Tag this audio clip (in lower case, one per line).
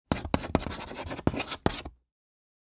domestic sounds
writing